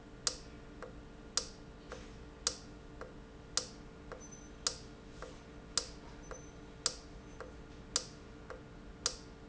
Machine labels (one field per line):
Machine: valve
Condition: normal